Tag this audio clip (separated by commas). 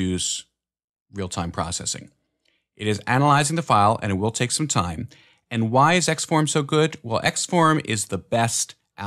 Speech